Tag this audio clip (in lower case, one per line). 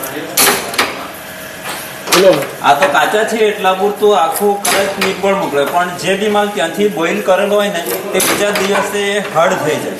speech
man speaking